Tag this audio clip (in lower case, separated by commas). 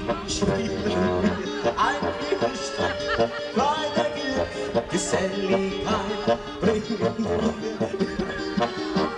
music